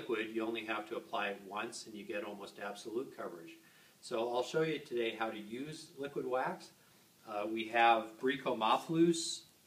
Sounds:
speech

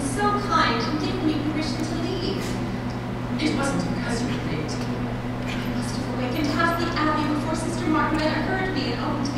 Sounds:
speech

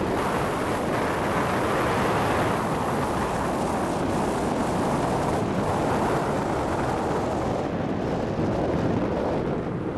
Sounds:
car, vehicle, outside, urban or man-made

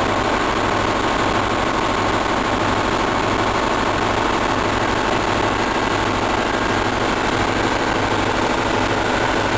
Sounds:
idling, heavy engine (low frequency), engine

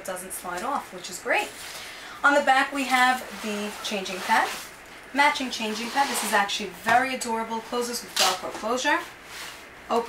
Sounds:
speech

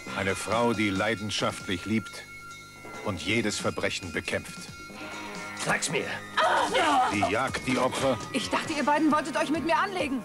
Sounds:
music, speech

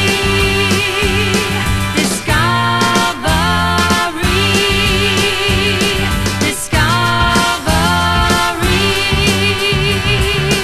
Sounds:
music, swing music

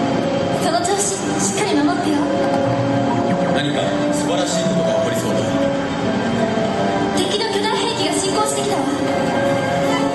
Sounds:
speech, music

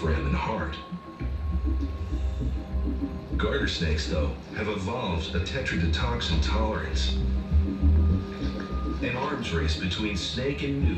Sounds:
speech, music

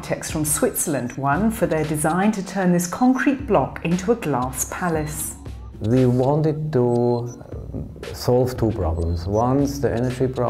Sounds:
speech, music

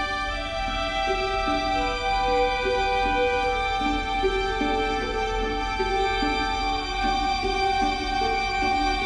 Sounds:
orchestra, music

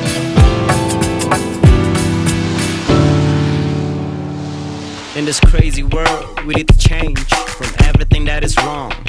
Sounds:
hip hop music, music

